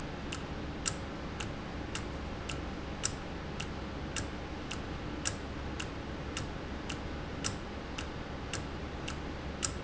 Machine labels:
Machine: valve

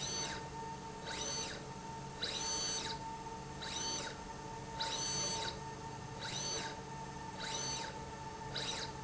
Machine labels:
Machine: slide rail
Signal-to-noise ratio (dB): 0 dB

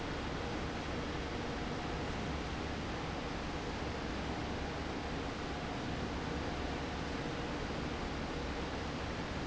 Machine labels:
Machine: fan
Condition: abnormal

